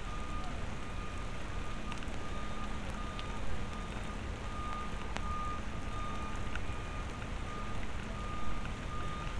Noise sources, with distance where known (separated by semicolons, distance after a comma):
reverse beeper